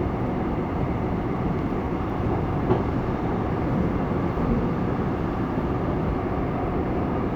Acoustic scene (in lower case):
subway train